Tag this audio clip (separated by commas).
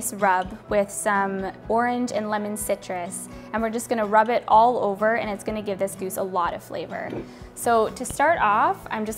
Speech, Music